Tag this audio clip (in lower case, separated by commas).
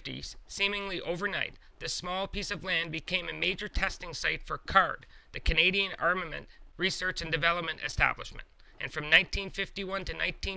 speech